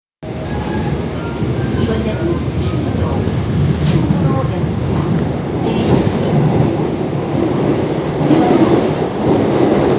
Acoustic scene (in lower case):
subway train